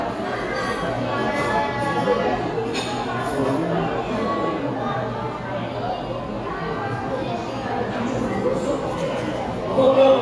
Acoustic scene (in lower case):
cafe